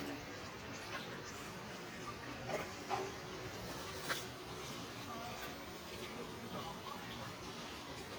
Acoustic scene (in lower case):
residential area